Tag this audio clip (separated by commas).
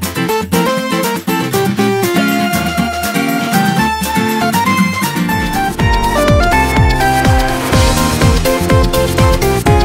Music